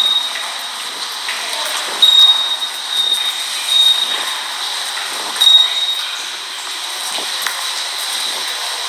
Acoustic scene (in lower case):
subway station